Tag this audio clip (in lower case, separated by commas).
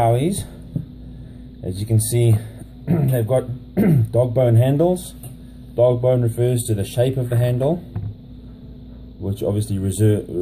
speech